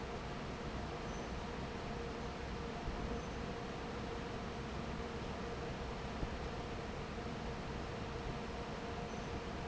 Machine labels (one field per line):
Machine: fan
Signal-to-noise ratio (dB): 0 dB